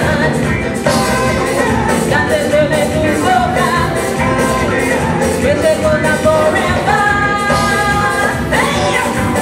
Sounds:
music, female singing

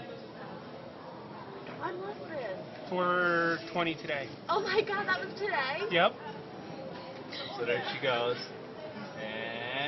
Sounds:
speech

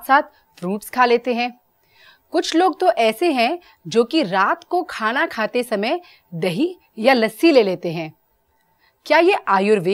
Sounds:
speech

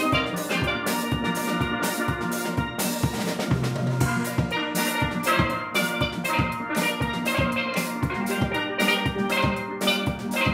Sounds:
playing steelpan

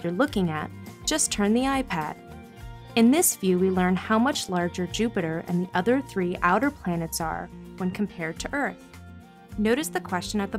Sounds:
speech, music

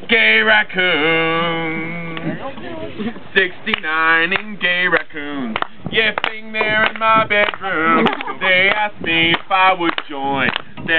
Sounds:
male singing, speech

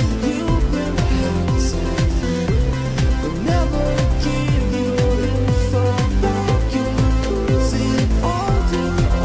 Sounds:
music, pop music

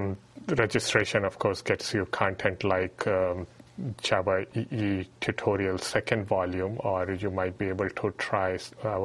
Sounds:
speech

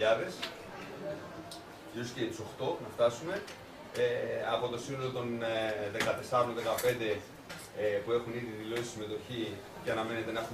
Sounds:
inside a small room, speech

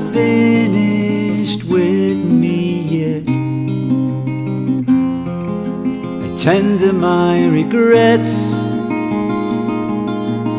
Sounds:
music, tender music

